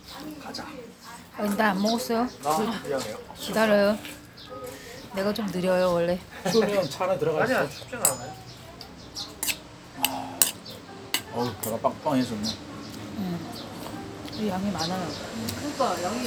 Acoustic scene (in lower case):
restaurant